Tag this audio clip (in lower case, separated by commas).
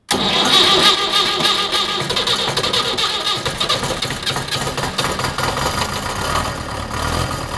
engine